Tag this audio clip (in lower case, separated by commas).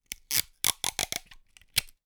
packing tape, domestic sounds